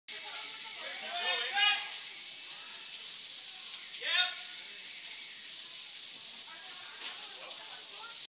People speaking with continuous water movement